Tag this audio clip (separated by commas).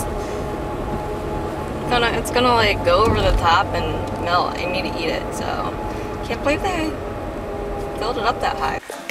Speech